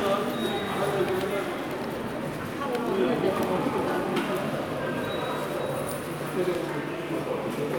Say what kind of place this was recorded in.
subway station